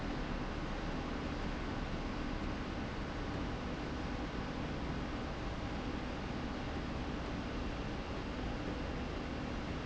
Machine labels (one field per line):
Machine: slide rail